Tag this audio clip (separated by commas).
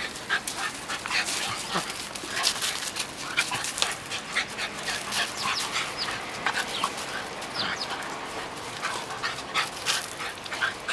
pets, Dog, canids, Animal